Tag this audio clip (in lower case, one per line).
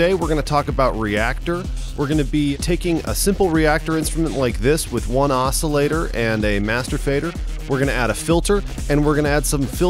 speech
music